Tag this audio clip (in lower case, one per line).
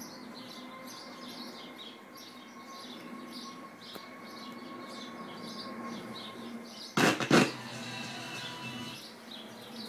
music
radio